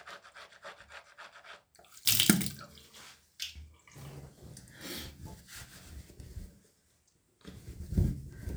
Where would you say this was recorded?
in a restroom